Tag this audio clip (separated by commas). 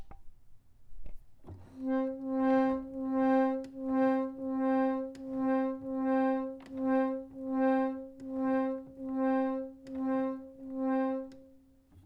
Keyboard (musical), Musical instrument, Music, Organ